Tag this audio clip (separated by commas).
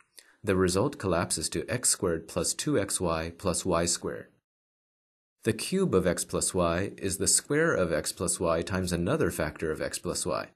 Speech synthesizer